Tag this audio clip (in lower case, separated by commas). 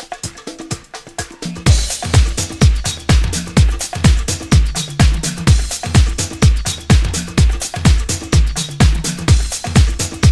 music